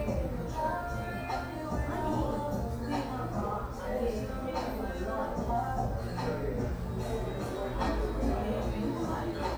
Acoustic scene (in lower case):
cafe